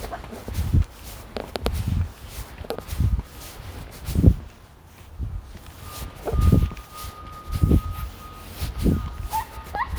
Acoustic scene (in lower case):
residential area